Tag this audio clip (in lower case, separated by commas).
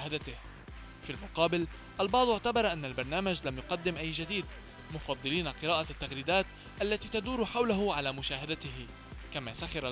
music, speech